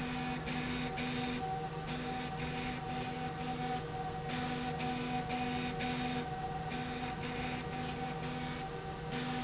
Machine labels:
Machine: slide rail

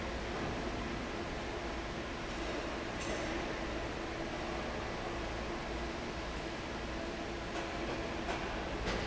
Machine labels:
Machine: fan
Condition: normal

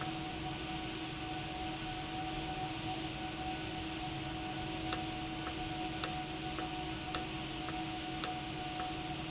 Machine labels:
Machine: valve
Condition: normal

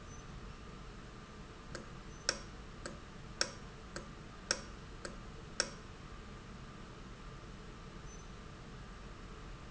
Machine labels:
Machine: valve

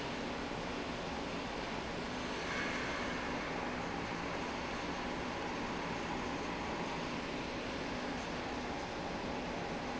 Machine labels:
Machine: slide rail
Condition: normal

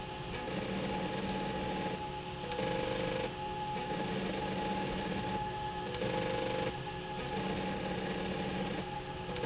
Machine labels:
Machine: slide rail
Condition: abnormal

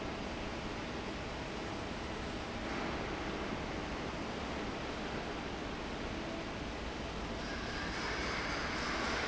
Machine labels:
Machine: fan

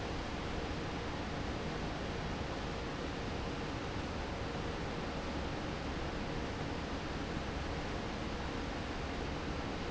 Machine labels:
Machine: fan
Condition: normal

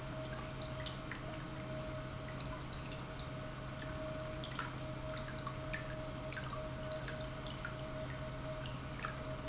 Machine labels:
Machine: pump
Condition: normal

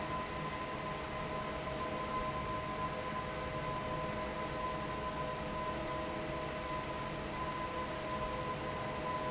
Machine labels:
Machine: fan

